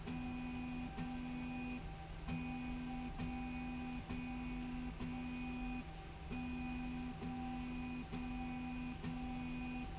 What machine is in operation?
slide rail